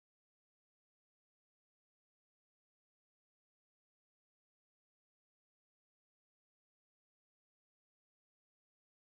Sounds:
Speech, Silence

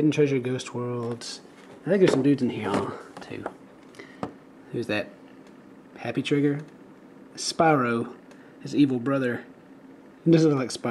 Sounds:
Speech

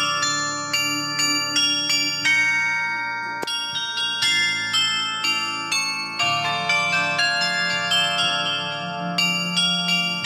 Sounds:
wind chime

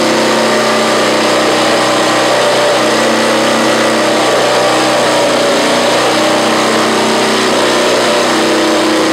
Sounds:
Heavy engine (low frequency)

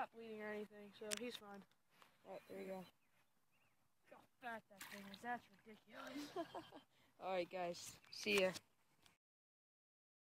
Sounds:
Speech

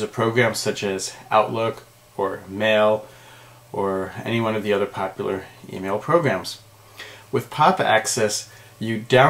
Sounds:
Speech

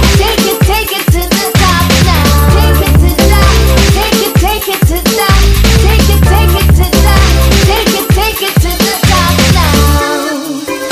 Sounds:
House music, Music

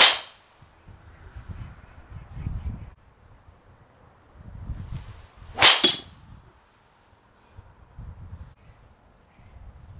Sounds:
golf driving

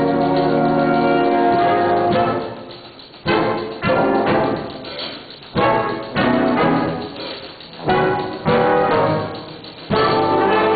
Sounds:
Music, Jazz

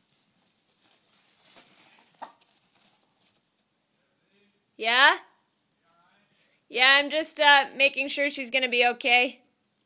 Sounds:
Cluck, Chicken, Fowl

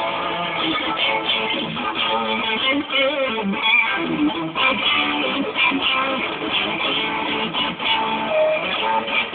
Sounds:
Guitar, Electric guitar, Strum, Musical instrument, Plucked string instrument, Music

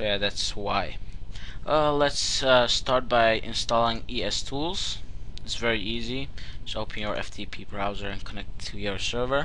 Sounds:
Speech

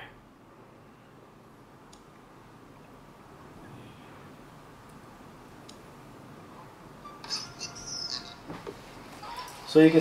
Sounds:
Speech

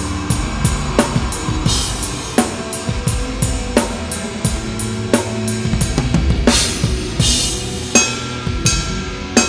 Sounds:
Drum, Drum kit, Cymbal, Drum roll, Music, Musical instrument, Snare drum

